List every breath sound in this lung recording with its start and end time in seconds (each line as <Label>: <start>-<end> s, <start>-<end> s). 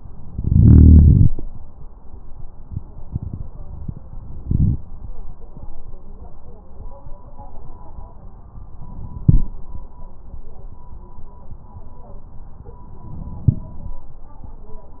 Inhalation: 4.45-4.77 s, 9.19-9.51 s, 13.44-13.76 s